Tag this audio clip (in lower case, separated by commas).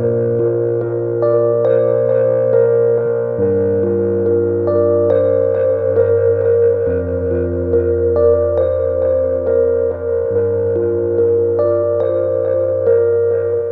musical instrument, keyboard (musical), piano, music